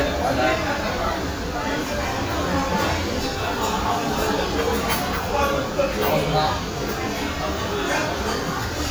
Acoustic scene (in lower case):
restaurant